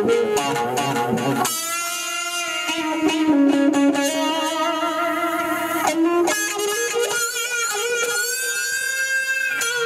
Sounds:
Music, Echo

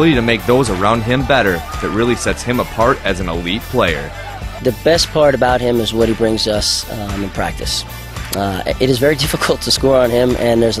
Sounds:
Music, Speech

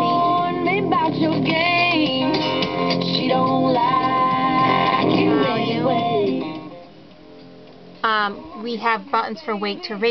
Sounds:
Speech, Music

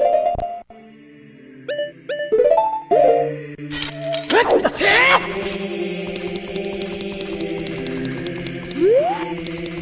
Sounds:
Music

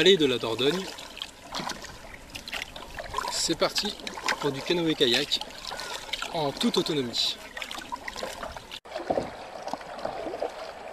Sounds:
Speech, Vehicle, Rowboat, Water vehicle

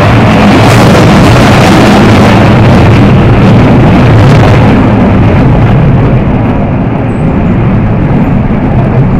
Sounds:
Aircraft, Vehicle

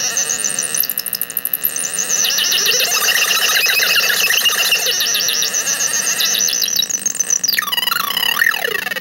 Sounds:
Cacophony

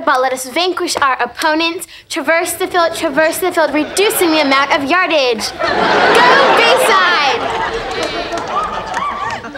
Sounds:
Speech

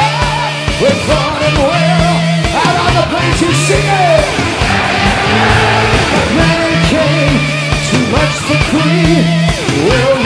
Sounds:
Music

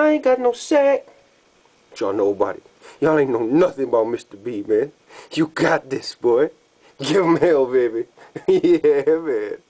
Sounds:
Speech

